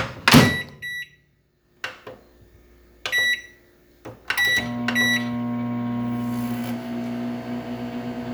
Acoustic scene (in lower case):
kitchen